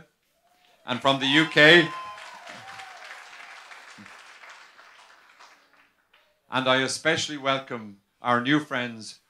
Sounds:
speech
monologue
man speaking

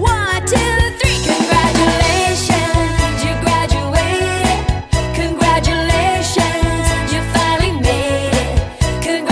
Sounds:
music

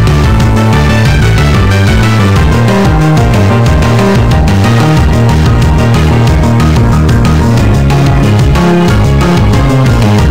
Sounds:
music

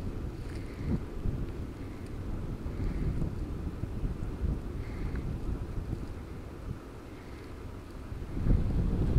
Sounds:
wind noise (microphone)
wind

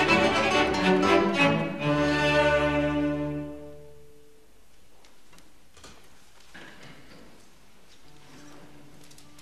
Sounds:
bowed string instrument
guitar
double bass
music
musical instrument
fiddle
plucked string instrument
cello
classical music
orchestra

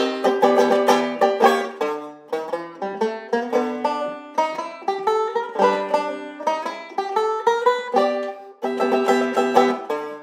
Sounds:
playing banjo

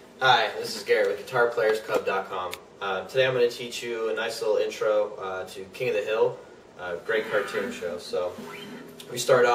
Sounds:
speech

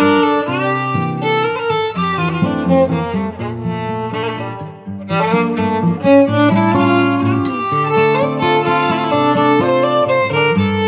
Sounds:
bowed string instrument
violin

